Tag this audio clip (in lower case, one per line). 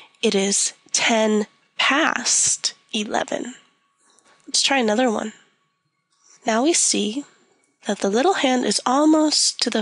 speech